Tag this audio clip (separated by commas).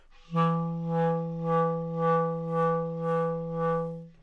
Music, Musical instrument, Wind instrument